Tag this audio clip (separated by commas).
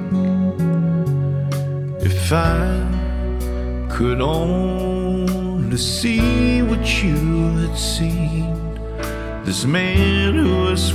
Music